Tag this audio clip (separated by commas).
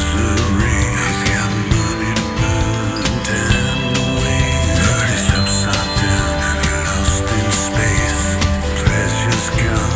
Tender music, Music